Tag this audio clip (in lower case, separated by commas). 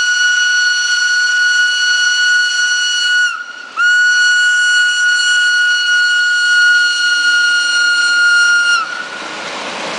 train wagon, outside, urban or man-made, vehicle, train